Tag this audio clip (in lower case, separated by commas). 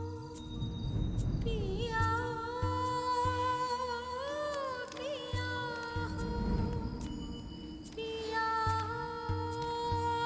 music